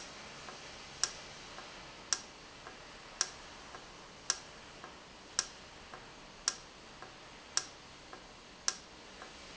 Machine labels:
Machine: valve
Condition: normal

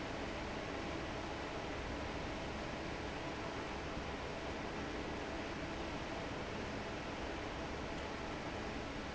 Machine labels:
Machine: fan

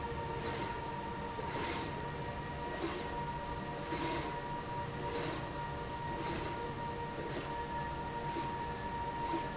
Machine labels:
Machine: slide rail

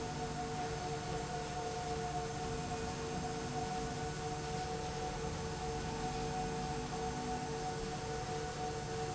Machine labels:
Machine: slide rail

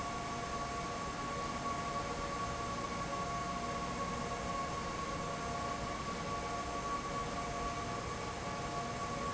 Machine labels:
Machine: fan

